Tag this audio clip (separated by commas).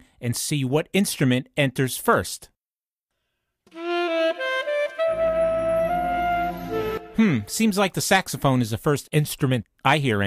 Flute, Wind instrument, Music, Speech